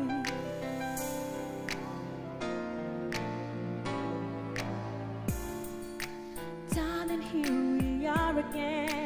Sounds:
Female singing, Music

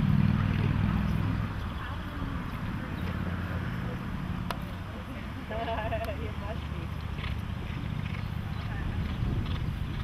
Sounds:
Speech, Clip-clop

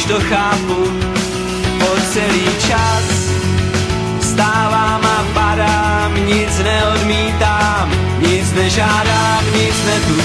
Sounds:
Music, Singing

